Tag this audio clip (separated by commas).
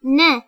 woman speaking, Human voice, Speech